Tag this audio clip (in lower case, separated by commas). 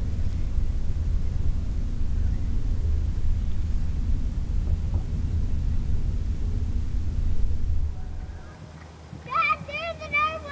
clip-clop, horse, animal, speech